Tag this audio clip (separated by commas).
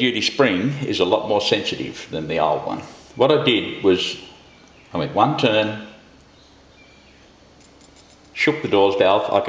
Speech